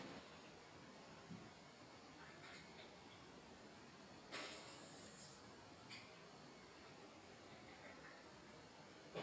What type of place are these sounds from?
restroom